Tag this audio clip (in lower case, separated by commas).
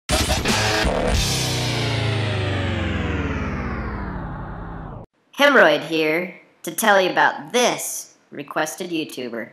speech, music